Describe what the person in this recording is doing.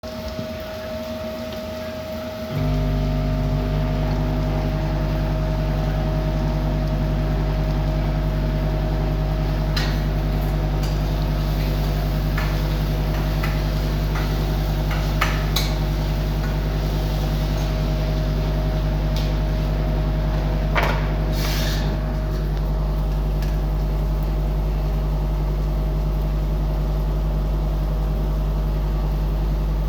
I toss the food in the pan, meanwhile cutting some vegtables on the cutting board meanwhile the microwave is heating up air